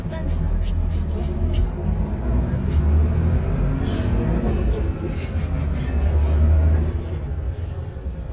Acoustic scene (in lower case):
bus